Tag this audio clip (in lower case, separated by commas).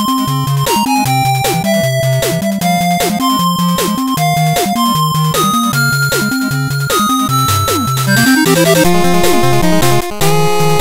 music